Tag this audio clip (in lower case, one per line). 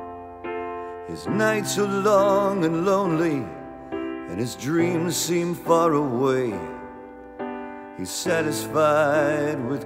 music